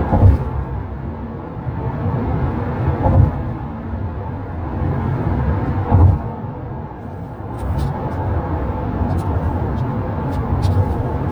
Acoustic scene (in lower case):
car